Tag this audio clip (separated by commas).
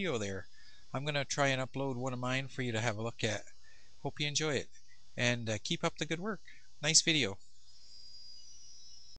Speech